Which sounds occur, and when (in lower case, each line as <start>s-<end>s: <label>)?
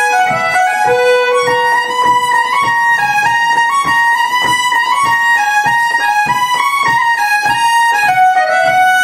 0.0s-9.0s: music
0.3s-0.4s: tap
0.8s-1.0s: tap
1.4s-1.5s: tap
2.0s-2.1s: tap
2.5s-2.6s: tap
3.1s-3.2s: tap
3.5s-3.5s: tap
3.8s-3.9s: tap
4.4s-4.5s: tap
5.0s-5.1s: tap
5.6s-5.7s: tap
5.8s-6.0s: tap
6.2s-6.4s: tap
6.5s-6.6s: tap
6.8s-6.9s: tap
7.4s-7.5s: tap
8.0s-8.1s: tap
8.6s-8.7s: tap